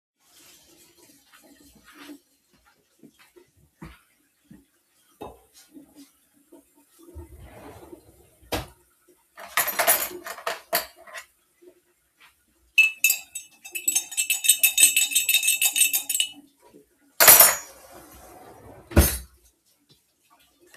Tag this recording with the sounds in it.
running water, footsteps, wardrobe or drawer, cutlery and dishes